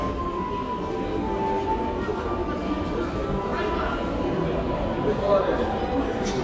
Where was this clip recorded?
in a crowded indoor space